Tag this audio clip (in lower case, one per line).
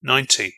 male speech
speech
human voice